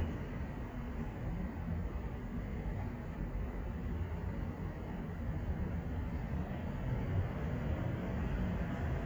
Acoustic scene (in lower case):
street